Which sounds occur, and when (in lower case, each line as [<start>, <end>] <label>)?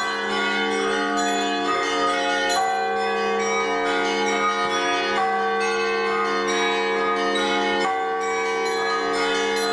[0.00, 9.72] music